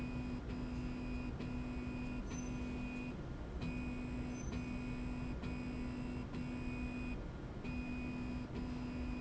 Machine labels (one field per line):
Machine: slide rail